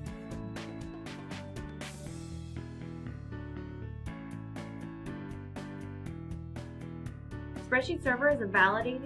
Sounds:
Speech, Music

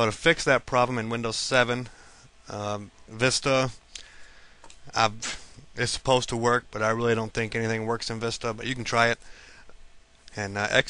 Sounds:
Speech

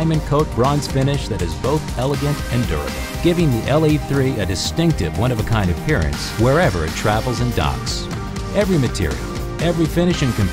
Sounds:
Speech, Music

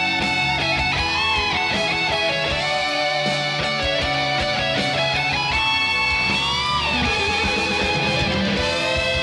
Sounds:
Music

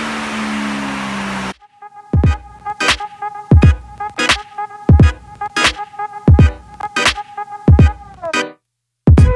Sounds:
Vehicle, Motor vehicle (road), Car, Music

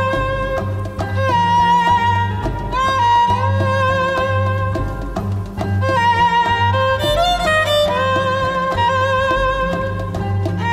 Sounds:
Violin, Orchestra, Music, Musical instrument

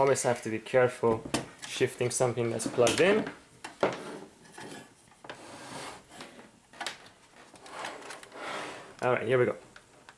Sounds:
Speech, inside a small room

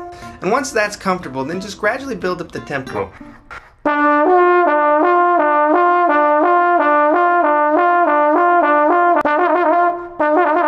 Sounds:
Trombone, Speech, Music, Trumpet

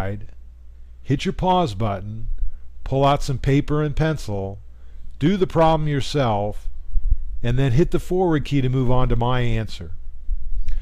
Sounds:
Speech

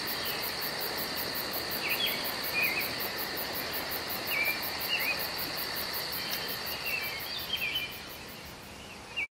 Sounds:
Animal

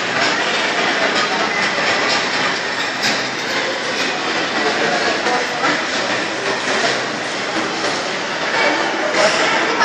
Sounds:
inside a public space, Speech

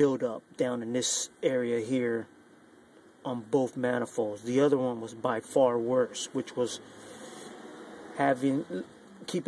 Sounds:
Speech

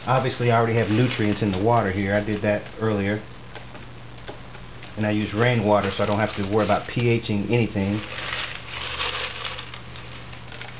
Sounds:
Speech

